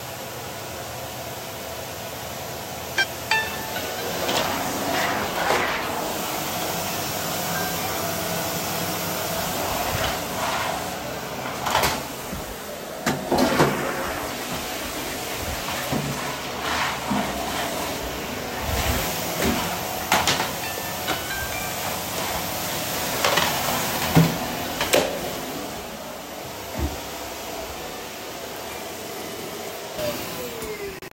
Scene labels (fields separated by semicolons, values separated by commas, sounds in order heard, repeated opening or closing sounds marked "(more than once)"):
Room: hallway, bathroom; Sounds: vacuum cleaner, phone ringing, toilet flushing